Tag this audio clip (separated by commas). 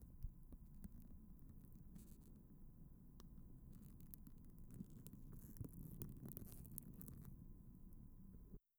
Wind, Fire